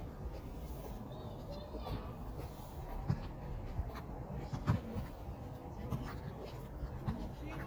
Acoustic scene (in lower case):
park